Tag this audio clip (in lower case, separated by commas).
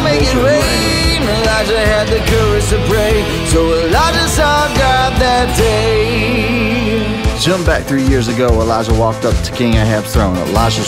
music, speech